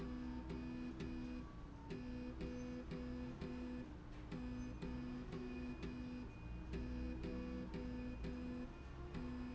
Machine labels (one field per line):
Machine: slide rail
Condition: normal